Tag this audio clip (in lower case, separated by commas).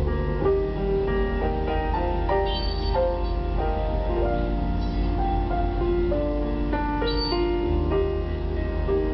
music, tender music, soundtrack music, christmas music